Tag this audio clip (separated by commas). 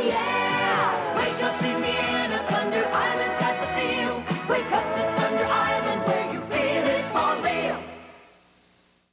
Music